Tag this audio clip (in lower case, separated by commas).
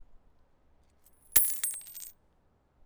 coin (dropping), domestic sounds